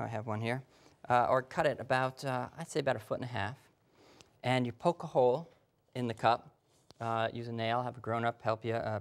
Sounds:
speech

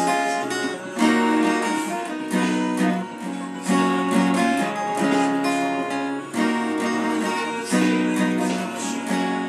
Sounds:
musical instrument, music, guitar, plucked string instrument, acoustic guitar

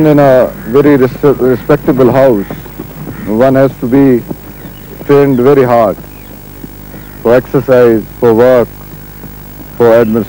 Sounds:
speech

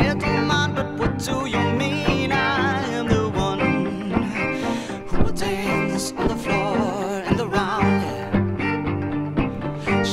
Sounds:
music, violin, musical instrument

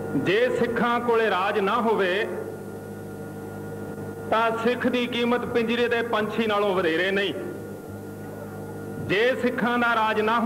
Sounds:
man speaking, narration, speech

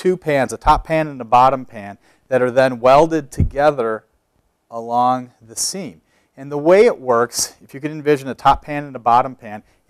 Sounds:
speech

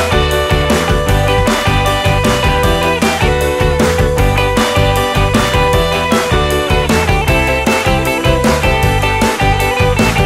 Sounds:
music

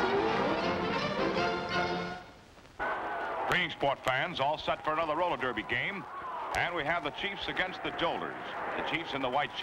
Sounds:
music, speech

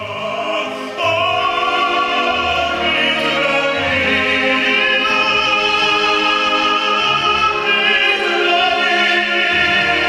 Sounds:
classical music, opera, singing, music, orchestra

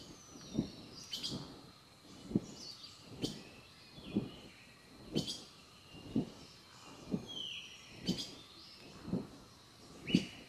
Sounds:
chirp, bird vocalization, bird

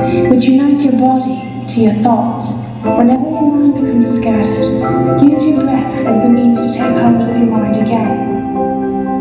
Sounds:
music, percussion, speech

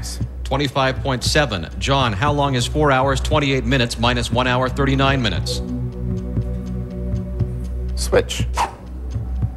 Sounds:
music, speech

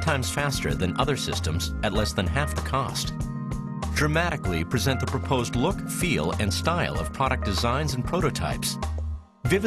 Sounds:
speech, music

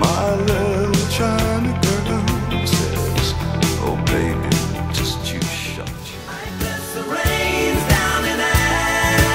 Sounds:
music

